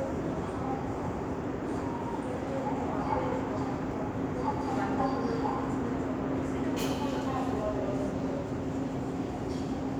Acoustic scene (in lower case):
subway station